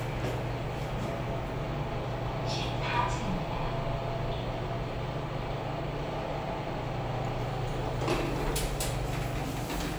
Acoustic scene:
elevator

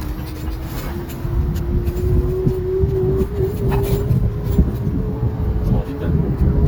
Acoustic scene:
street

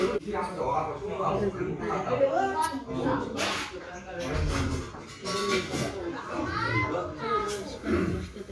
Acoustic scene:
restaurant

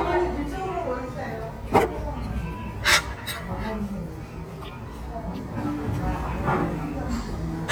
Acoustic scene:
restaurant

